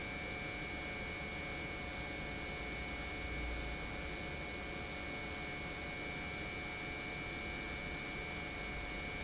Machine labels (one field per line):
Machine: pump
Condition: normal